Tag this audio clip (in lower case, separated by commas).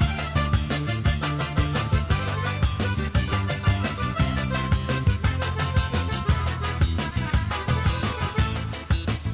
music, independent music, soundtrack music